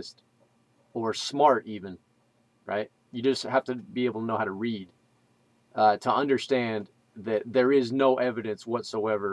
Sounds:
Speech

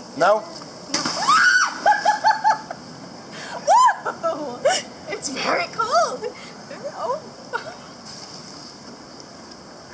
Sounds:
Speech

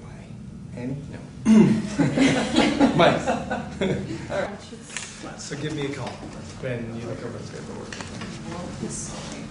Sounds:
Conversation, Speech

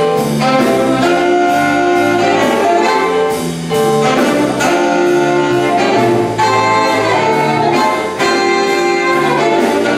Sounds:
Music, Jazz

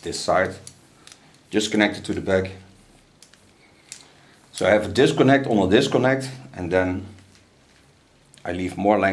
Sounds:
Speech, inside a small room

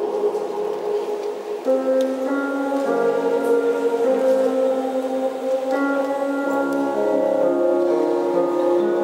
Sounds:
Lullaby, Music

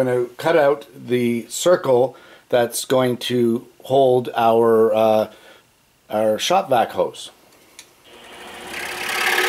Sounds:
Speech, Tools, Drill

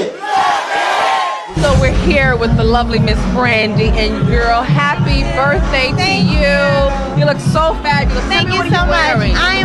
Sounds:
Music, Speech

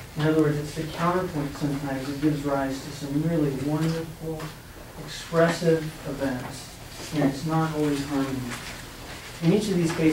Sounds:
Speech

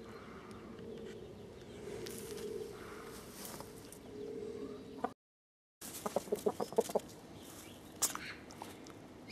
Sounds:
Bird

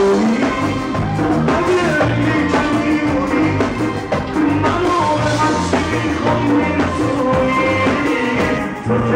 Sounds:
Music

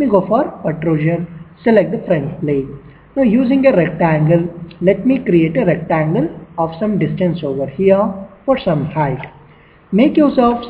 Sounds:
Speech

